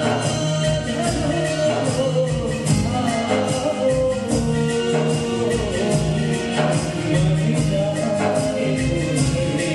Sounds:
music

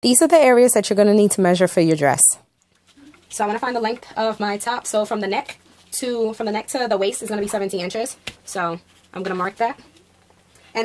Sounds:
speech

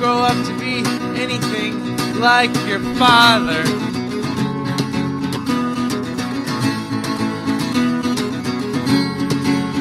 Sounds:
music

